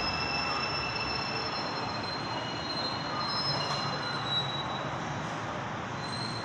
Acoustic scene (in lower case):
subway station